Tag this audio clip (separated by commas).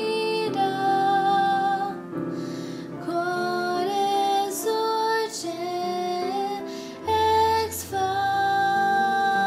Lullaby, Music